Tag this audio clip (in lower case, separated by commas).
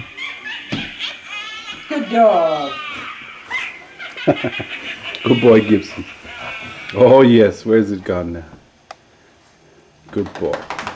speech, inside a large room or hall